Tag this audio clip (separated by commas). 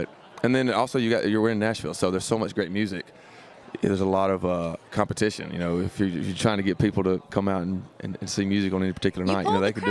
Speech